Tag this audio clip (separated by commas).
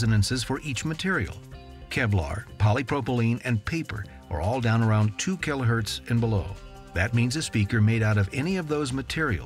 Music, Speech